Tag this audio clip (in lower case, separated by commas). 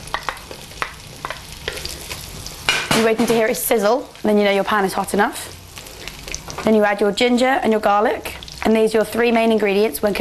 speech